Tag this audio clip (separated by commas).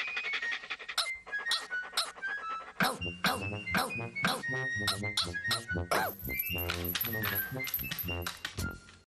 Music, Bow-wow